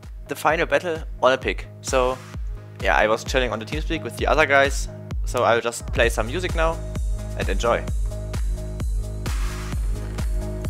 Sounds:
Speech, Music

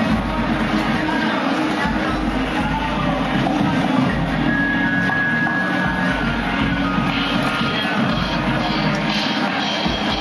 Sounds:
Music, Speech

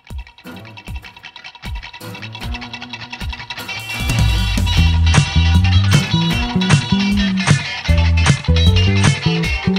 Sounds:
Electronic music, Electronic dance music, Music

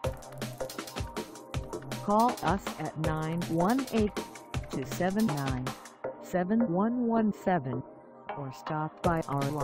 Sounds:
Music, Speech

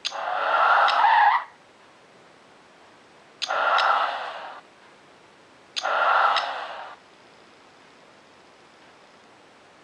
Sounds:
Traffic noise

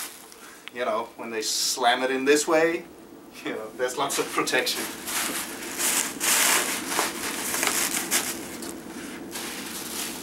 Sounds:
Speech, inside a small room

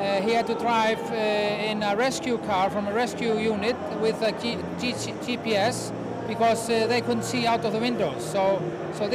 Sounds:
Speech

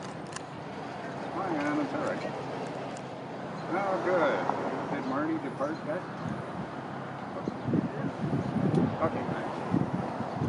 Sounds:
Speech

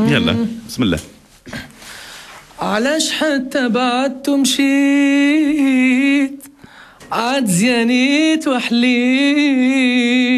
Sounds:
Music, Speech

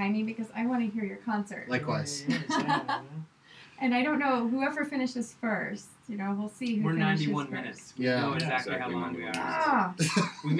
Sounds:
Speech

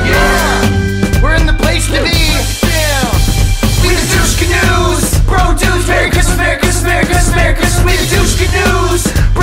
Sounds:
Music, Speech

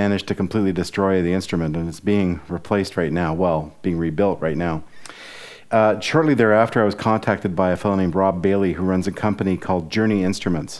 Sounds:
Speech

